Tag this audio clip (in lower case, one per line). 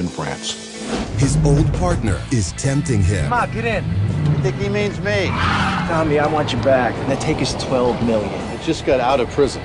speech